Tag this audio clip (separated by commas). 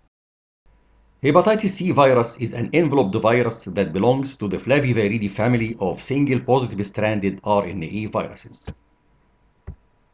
Speech